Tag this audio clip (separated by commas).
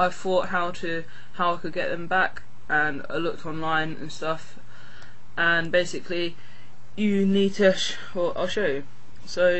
Speech